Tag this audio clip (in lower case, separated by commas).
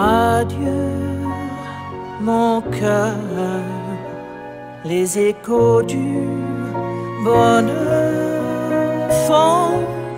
music